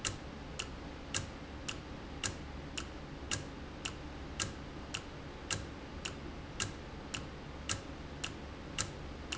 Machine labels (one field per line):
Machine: valve